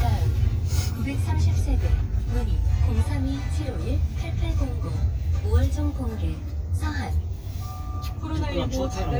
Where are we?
in a car